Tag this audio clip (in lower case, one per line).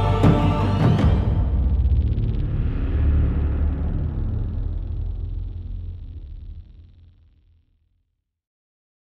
music